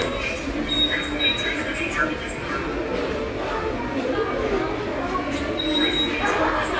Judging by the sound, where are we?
in a subway station